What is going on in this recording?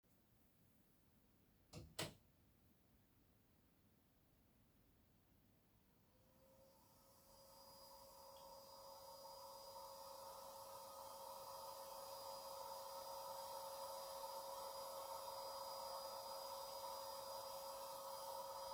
I went to my room and switched on the lights. Since i could see better, I vacuumed the living room much faster.